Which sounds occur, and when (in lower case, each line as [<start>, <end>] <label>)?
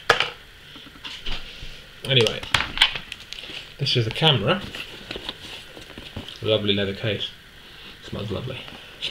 [0.00, 9.10] mechanisms
[0.04, 0.32] generic impact sounds
[0.68, 1.09] generic impact sounds
[1.22, 1.42] generic impact sounds
[1.40, 1.82] surface contact
[1.58, 1.72] generic impact sounds
[1.99, 2.43] male speech
[2.00, 2.40] generic impact sounds
[2.52, 2.95] generic impact sounds
[3.08, 3.56] generic impact sounds
[3.29, 3.70] surface contact
[3.74, 4.65] male speech
[4.05, 4.15] tick
[4.58, 4.81] generic impact sounds
[4.96, 5.33] generic impact sounds
[5.38, 5.69] surface contact
[5.68, 6.26] generic impact sounds
[6.37, 7.38] male speech
[7.64, 7.98] breathing
[8.06, 8.62] male speech
[8.58, 8.75] tick